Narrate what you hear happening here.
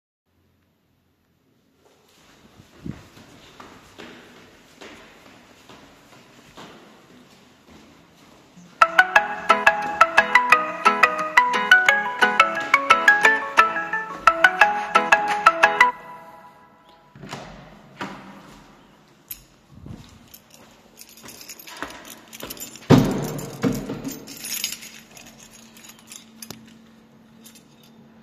I was walking up the stairs when my phone started ringing. I continued up till I reached my floor, then silenced my phone. I opened the door into the hallway and took out my keys to open my apartment door.